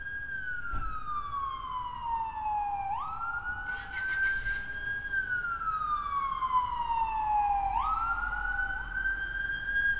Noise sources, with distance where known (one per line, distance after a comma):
siren, far